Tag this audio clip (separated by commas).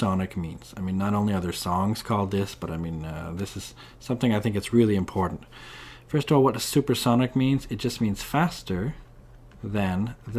Speech